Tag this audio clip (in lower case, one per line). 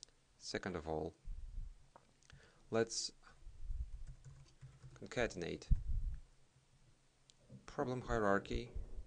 speech
computer keyboard